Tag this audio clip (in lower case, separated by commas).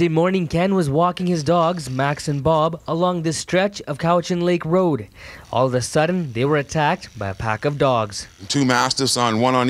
speech